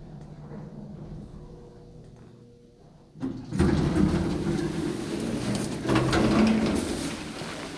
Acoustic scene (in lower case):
elevator